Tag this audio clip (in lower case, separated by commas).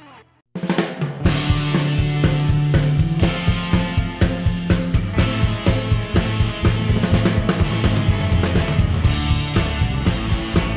electronic music, music